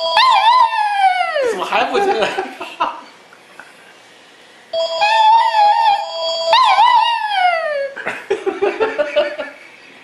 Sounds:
Speech

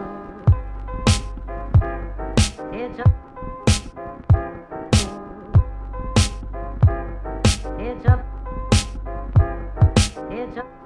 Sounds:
Music

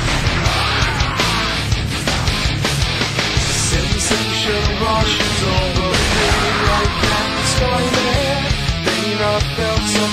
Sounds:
Music

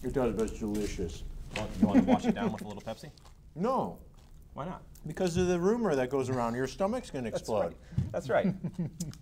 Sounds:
Speech

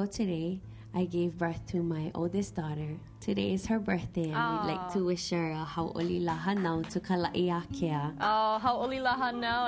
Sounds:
Speech

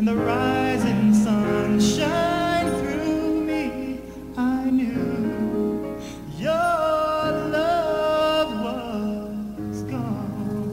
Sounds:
Music, Tender music, Middle Eastern music

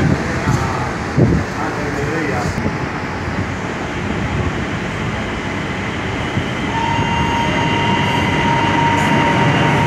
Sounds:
subway

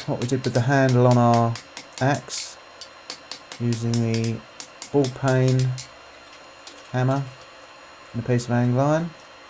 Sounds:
Tools, Speech

